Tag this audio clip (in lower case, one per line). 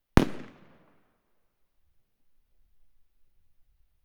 fireworks
explosion